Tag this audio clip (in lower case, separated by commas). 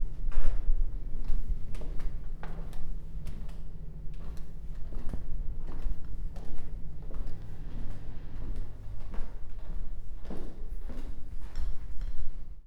walk, squeak